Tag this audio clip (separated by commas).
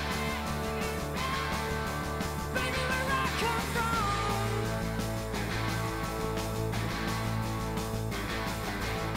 Music, Rock and roll